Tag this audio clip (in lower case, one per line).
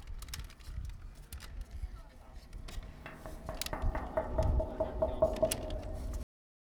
tap